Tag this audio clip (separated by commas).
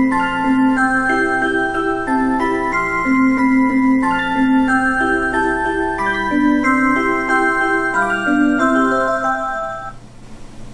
Music